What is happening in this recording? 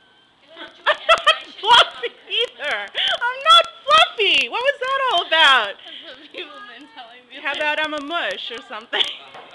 A woman is laughing and talking to another woman who talking back in the distance